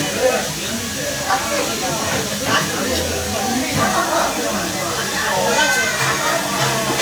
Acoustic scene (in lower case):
restaurant